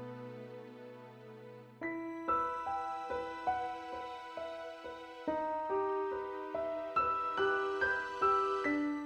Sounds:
piano, lullaby, music

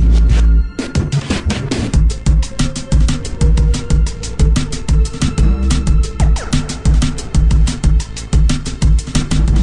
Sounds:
music, background music

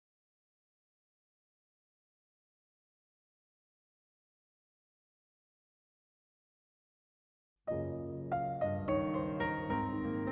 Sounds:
music

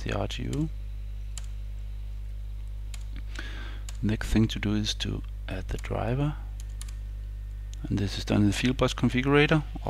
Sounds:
speech

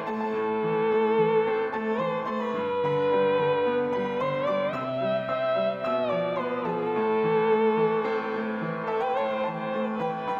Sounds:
piano, keyboard (musical)

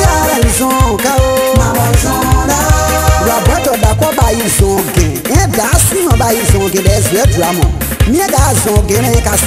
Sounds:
music, gospel music

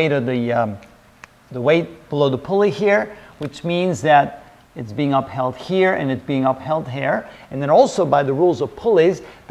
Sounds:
speech

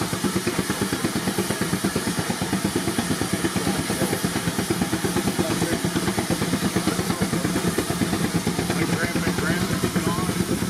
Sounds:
speech, heavy engine (low frequency)

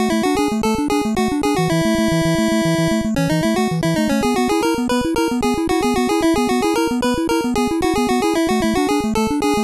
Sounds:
music, video game music

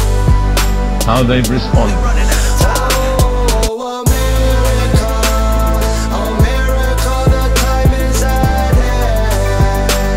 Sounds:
music

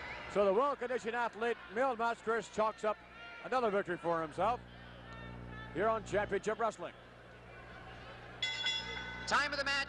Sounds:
speech

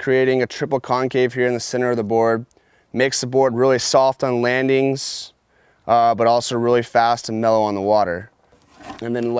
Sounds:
speech

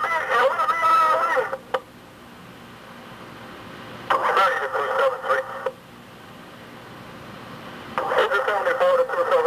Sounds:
fire, speech

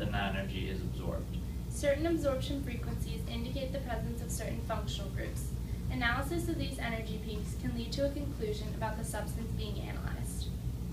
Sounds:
speech

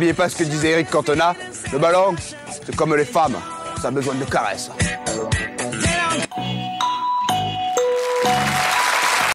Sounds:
speech, music

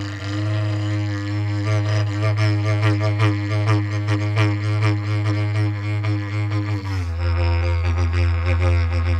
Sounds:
didgeridoo, music

